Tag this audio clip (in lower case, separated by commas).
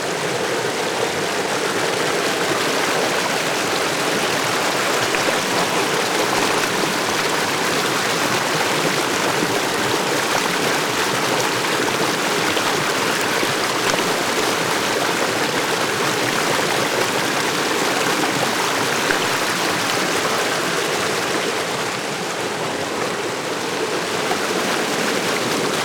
water, stream